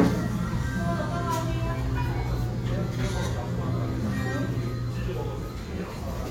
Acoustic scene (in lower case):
restaurant